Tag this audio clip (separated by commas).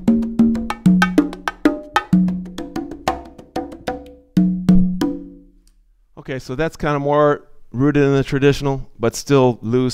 playing congas